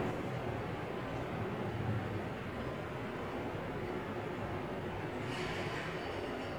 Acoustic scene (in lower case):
subway station